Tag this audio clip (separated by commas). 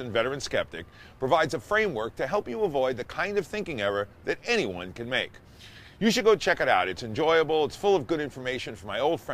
Speech